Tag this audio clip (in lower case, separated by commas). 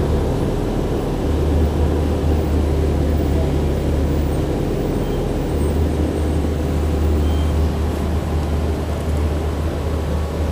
bus, vehicle